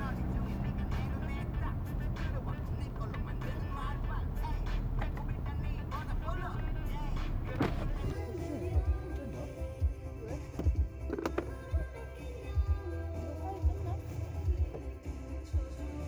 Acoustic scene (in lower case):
car